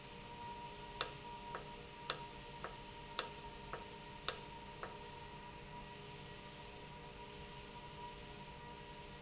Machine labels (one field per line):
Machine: valve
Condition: normal